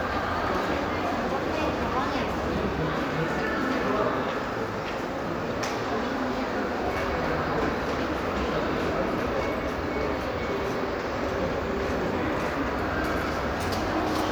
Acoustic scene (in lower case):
crowded indoor space